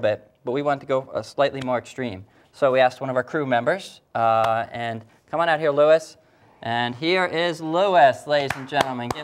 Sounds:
Speech

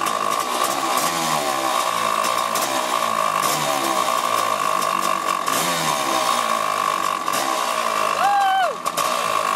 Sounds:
Vehicle

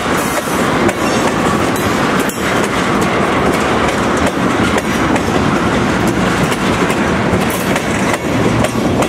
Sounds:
train wagon, Clickety-clack, Train, Rail transport

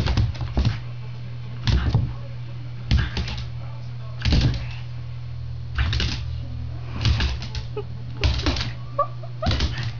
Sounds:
Speech, Animal, Tap

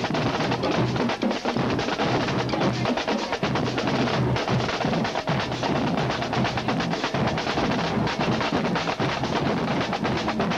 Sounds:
Percussion, Speech, Music

